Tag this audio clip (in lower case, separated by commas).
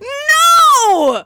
human voice, yell, shout